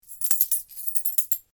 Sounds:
domestic sounds, coin (dropping)

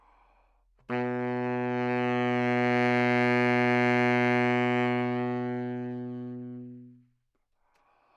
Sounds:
music, wind instrument, musical instrument

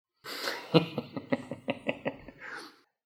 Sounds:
laughter, human voice

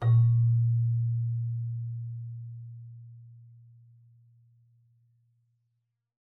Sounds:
keyboard (musical), music, musical instrument

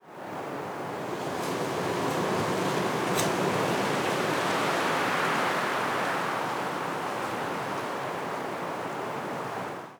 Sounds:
wind

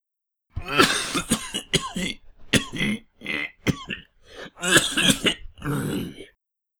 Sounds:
cough, respiratory sounds

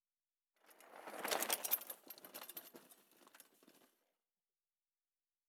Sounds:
bicycle, vehicle

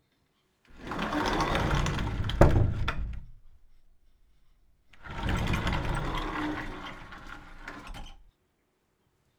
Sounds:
home sounds, sliding door, door

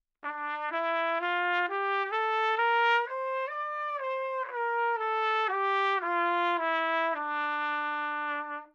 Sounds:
musical instrument, trumpet, brass instrument, music

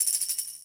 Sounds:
music, musical instrument, percussion, tambourine

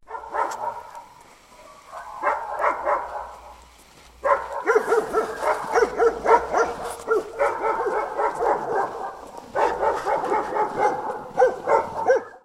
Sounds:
pets, animal, dog, bark

